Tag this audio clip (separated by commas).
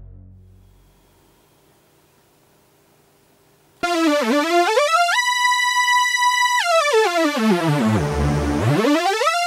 Music, Sound effect